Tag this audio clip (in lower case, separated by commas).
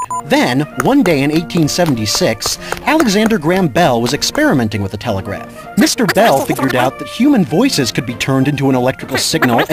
speech, music